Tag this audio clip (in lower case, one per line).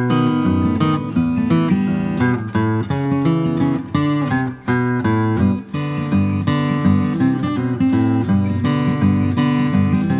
guitar
acoustic guitar
strum
plucked string instrument
music
musical instrument